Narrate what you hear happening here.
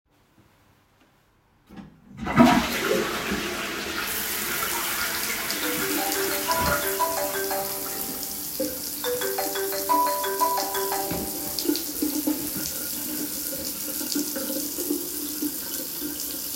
I flushed the toilet, and then turned on the water to wash my hands, when the phone suddenly started ringing.